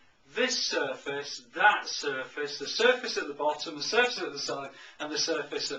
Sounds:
speech

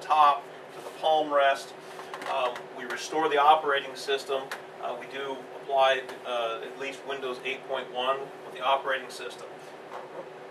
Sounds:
speech

